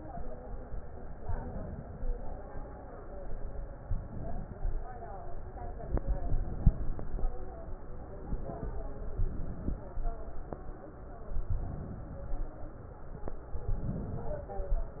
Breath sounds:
1.19-2.04 s: inhalation
3.85-4.90 s: inhalation
5.90-6.96 s: inhalation
9.13-9.84 s: inhalation
11.49-12.20 s: inhalation
13.58-14.47 s: inhalation

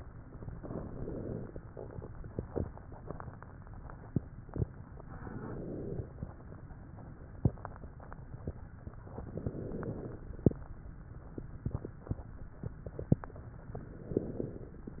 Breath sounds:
0.47-1.56 s: inhalation
0.47-1.56 s: crackles
5.16-6.24 s: inhalation
5.16-6.24 s: crackles
9.18-10.27 s: inhalation
9.18-10.27 s: crackles
13.76-14.84 s: inhalation
13.76-14.84 s: crackles

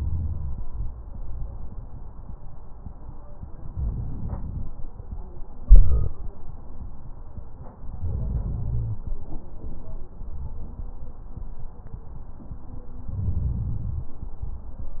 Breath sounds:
3.69-4.72 s: inhalation
7.96-9.01 s: inhalation
13.11-14.16 s: inhalation

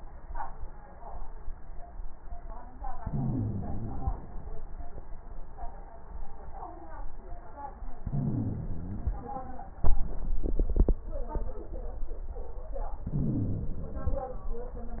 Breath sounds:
2.98-4.29 s: inhalation
2.98-4.29 s: wheeze
8.04-9.36 s: inhalation
8.04-9.36 s: wheeze
13.04-14.35 s: inhalation
13.04-14.35 s: wheeze

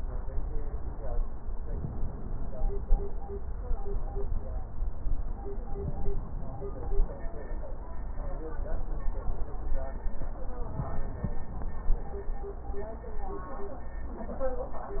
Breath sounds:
1.65-3.15 s: inhalation

